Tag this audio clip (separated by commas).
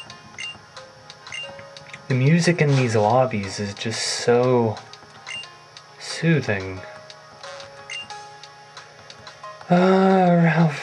Speech